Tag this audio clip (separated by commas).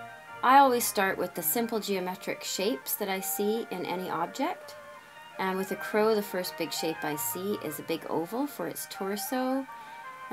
Speech, Music